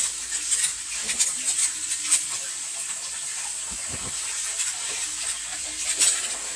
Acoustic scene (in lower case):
kitchen